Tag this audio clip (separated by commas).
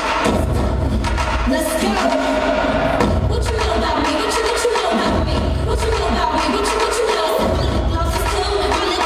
Thump